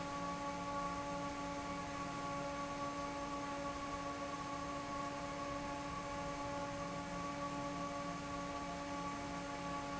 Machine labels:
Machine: fan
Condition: normal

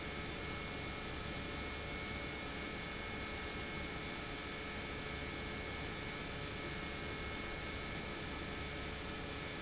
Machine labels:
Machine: pump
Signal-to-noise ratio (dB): 0 dB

